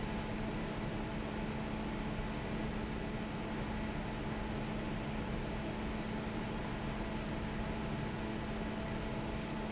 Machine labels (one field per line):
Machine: fan